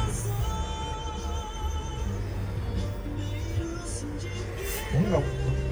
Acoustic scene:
car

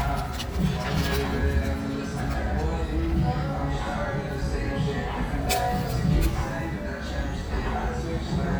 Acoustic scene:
restaurant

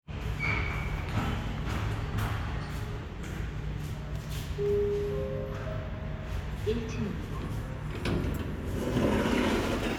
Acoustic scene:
elevator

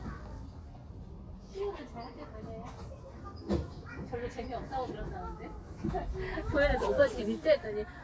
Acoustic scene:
residential area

